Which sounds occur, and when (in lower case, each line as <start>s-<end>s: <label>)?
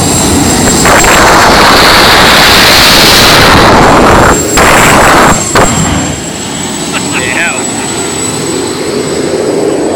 0.0s-9.9s: jet engine
6.9s-7.9s: laughter
7.1s-7.6s: man speaking
9.9s-9.9s: human voice